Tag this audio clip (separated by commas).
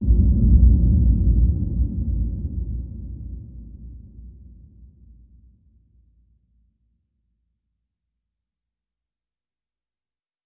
Explosion, Boom